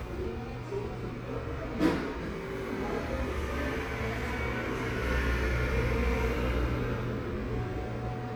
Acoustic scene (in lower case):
cafe